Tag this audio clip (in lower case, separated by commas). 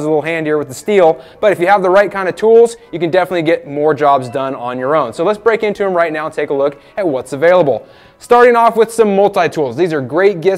music, speech